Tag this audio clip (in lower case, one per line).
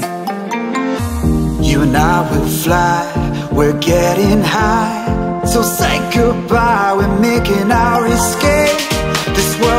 house music
music